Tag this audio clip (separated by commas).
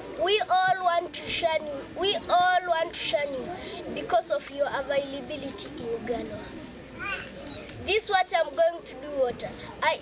Speech